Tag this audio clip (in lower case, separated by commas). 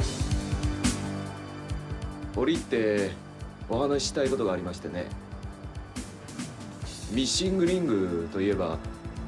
music, speech